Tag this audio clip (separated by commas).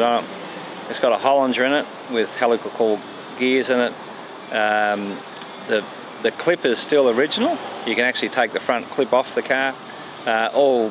Speech